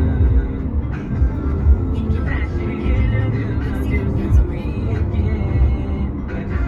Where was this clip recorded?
in a car